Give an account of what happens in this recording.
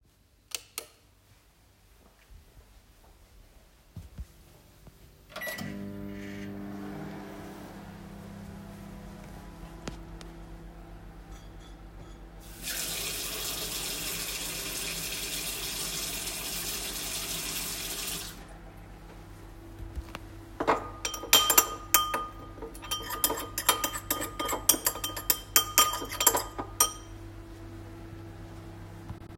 I am walking into the kitchen; turning on the light; starting the microwave and while microwaving I wash my hands and start preparing something